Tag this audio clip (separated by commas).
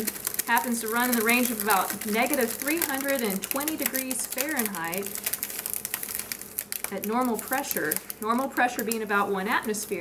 Speech